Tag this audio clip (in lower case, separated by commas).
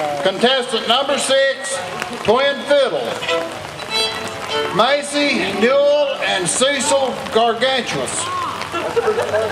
bluegrass, country, music, speech